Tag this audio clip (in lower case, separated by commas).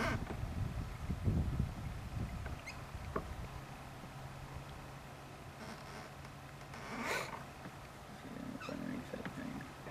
boat, speech